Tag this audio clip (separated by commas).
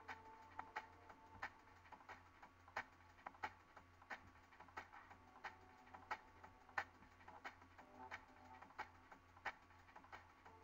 Music